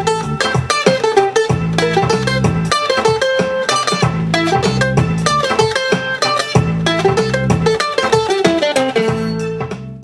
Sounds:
playing mandolin

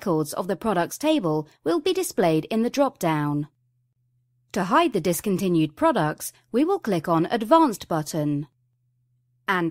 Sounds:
speech

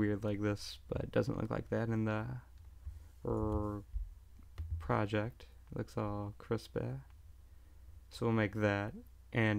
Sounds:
speech

